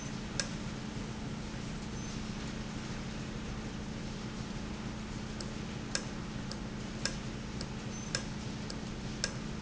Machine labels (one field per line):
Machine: valve